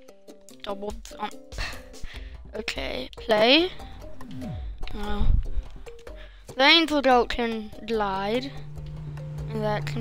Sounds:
Speech, Music

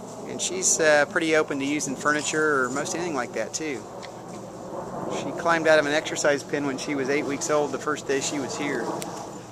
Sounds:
Speech

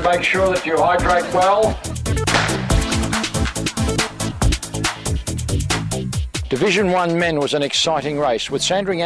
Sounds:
Male speech, Speech, Music

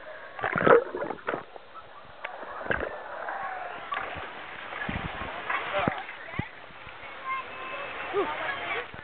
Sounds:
Speech

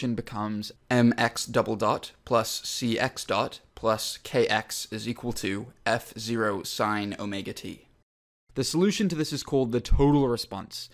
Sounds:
Speech

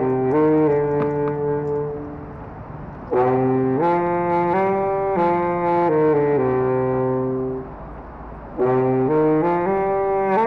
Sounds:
Musical instrument, outside, rural or natural, Music

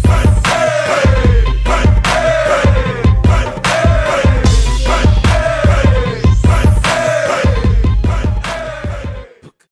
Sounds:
Music

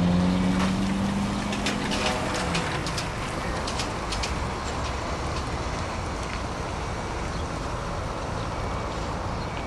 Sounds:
Vehicle, Bus

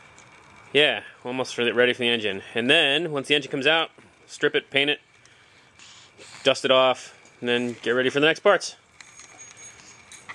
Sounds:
Speech

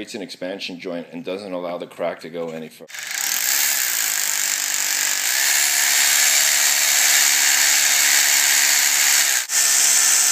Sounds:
Speech, Drill

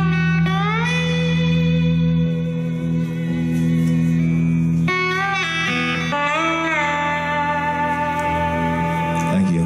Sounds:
Music, Speech

